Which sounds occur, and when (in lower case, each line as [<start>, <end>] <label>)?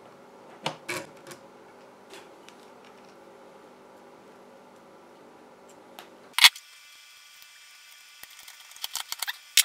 [0.00, 9.64] mechanisms
[0.60, 0.75] tick
[1.10, 1.43] generic impact sounds
[1.74, 1.89] generic impact sounds
[2.41, 2.49] tick
[2.42, 2.66] generic impact sounds
[2.79, 3.13] generic impact sounds
[5.92, 6.08] tick
[6.35, 6.54] tap
[7.37, 7.48] generic impact sounds
[8.20, 9.38] generic impact sounds
[9.54, 9.64] generic impact sounds